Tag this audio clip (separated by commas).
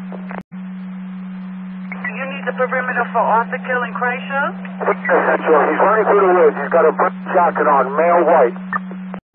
police radio chatter